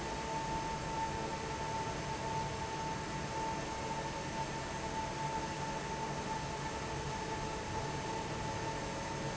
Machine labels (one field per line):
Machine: fan